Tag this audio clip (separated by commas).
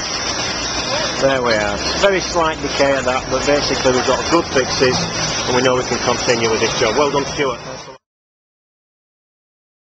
Speech